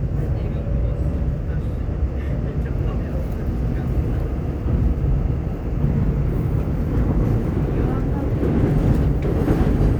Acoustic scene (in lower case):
subway train